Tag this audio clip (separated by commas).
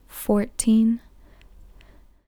Human voice, Speech, Female speech